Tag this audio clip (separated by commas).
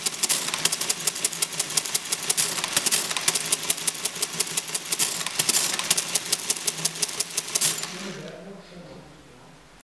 Typewriter